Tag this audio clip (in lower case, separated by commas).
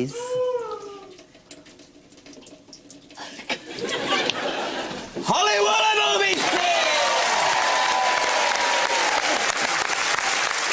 water